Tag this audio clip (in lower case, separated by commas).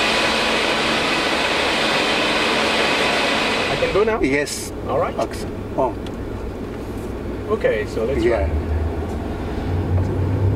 vehicle, speech